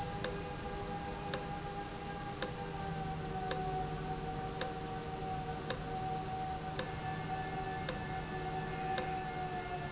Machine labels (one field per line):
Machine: valve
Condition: abnormal